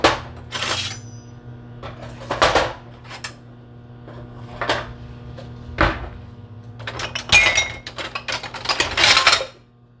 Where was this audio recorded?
in a kitchen